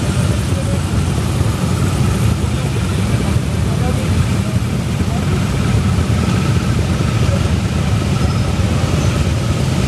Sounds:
Speech, Motorcycle, Traffic noise, Vehicle

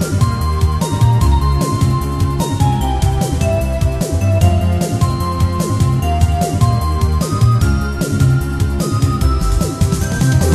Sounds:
Music

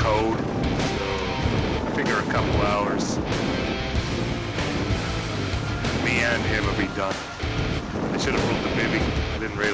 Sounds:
Wind, Wind noise (microphone)

